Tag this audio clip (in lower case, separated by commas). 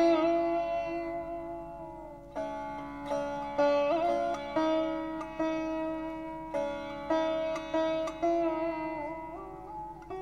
playing sitar